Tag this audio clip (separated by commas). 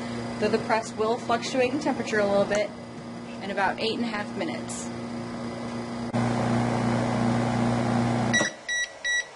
Speech, bleep